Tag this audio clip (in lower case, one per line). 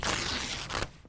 tearing